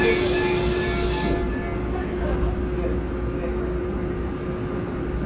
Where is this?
on a subway train